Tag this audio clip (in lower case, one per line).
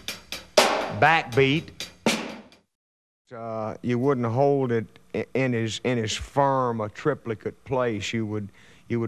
inside a large room or hall
drum kit
drum
musical instrument
music
speech